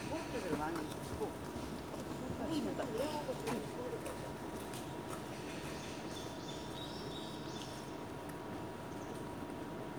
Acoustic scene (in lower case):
park